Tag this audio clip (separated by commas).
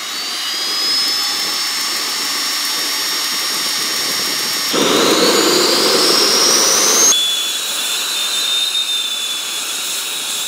Jet engine, Vehicle, Aircraft